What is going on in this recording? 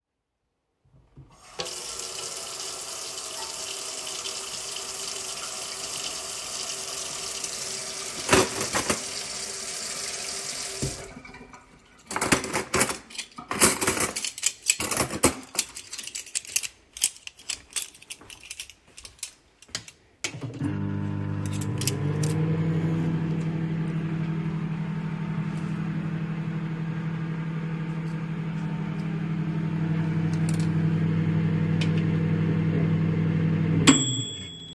I turned on the tap, arranged my cutlery and then turned on the microwave